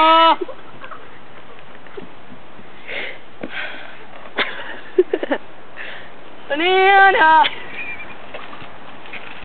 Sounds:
Speech

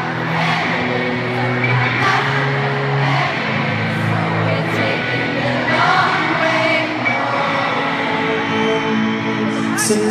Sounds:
Male singing, Music, Crowd, Choir, Female singing

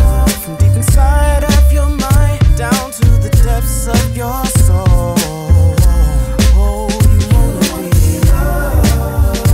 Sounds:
Rhythm and blues, Music

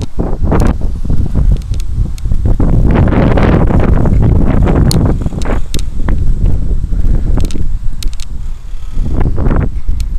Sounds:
outside, rural or natural

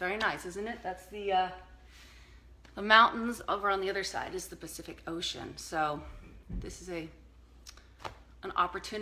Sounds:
Speech

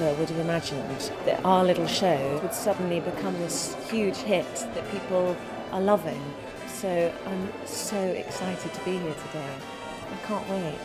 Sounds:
Speech, Music

